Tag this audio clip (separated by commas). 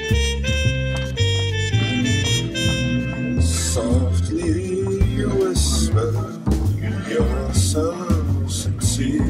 Techno, Music, Electronic music, Jazz